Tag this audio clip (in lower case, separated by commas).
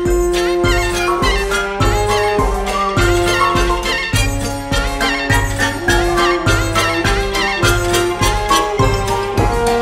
music